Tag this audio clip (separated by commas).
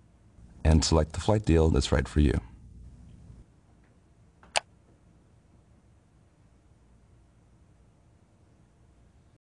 Speech